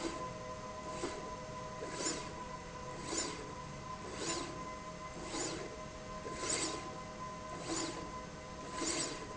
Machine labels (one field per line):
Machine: slide rail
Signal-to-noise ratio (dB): 0 dB